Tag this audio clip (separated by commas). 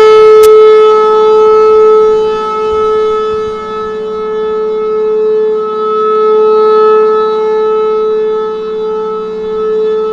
Siren